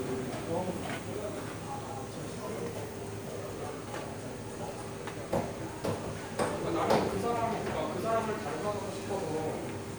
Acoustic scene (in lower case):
cafe